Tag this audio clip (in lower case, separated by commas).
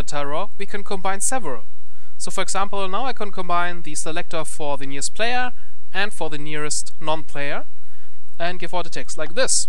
monologue